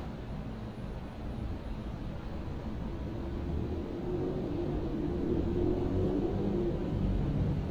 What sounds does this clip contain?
medium-sounding engine